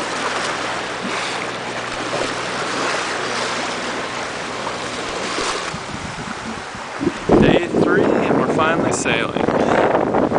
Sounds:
Speech, Vehicle, Ocean, Boat

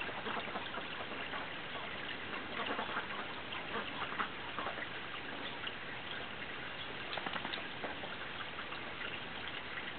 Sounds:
duck quacking, Duck, Animal, Quack

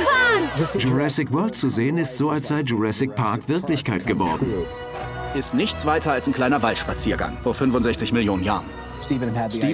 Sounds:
Music, Speech

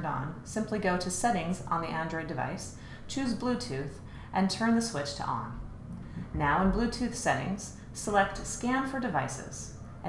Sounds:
Speech

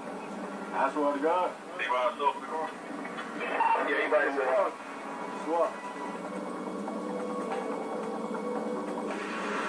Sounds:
Music, Speech, Vehicle

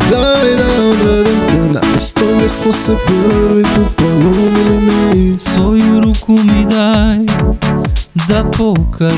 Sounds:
Rhythm and blues, Music

